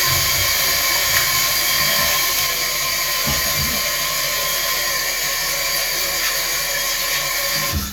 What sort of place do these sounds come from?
restroom